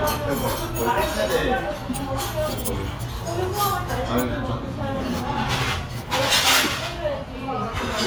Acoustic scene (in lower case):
restaurant